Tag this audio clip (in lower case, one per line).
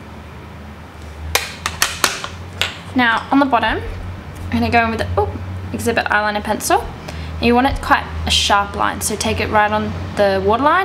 speech